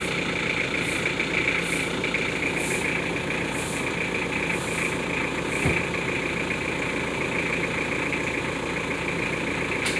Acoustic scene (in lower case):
residential area